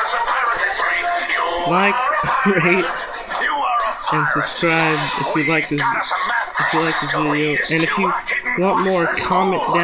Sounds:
speech
music

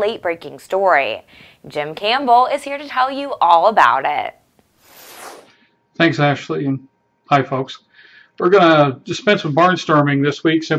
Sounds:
speech

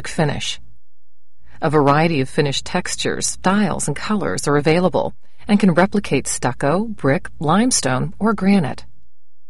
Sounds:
speech synthesizer

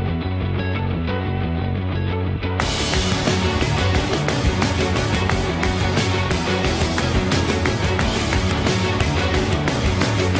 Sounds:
music

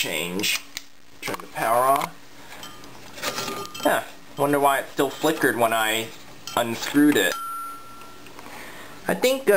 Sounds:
inside a small room
speech

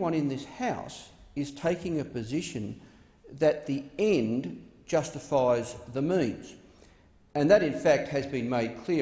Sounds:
speech
man speaking
monologue

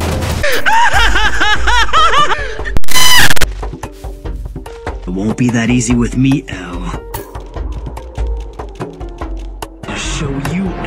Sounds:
speech
music

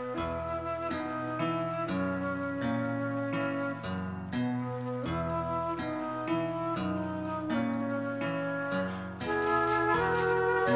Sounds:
music

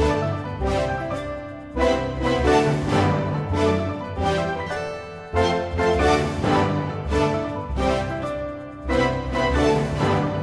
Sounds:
video game music
music

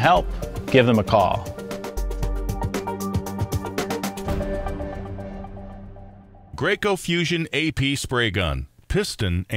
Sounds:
music
speech

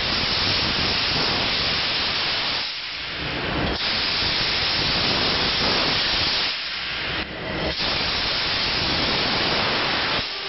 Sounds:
steam

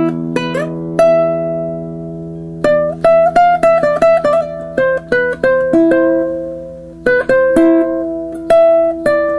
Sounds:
musical instrument
acoustic guitar
plucked string instrument
music
guitar
classical music

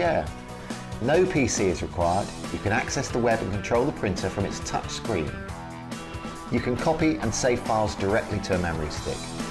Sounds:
music
speech

